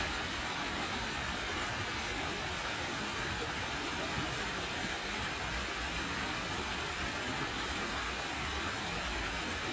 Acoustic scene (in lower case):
park